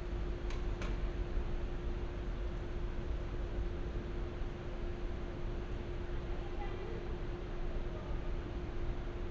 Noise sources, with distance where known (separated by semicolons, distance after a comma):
person or small group talking